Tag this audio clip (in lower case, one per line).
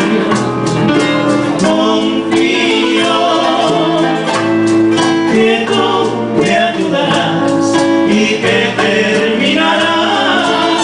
male singing
musical instrument
music
singing